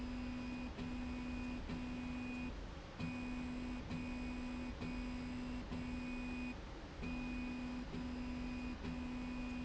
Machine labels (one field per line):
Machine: slide rail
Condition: normal